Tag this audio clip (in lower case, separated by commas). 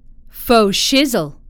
human voice, speech, woman speaking